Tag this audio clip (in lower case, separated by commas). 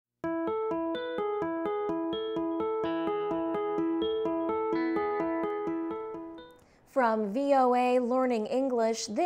music, speech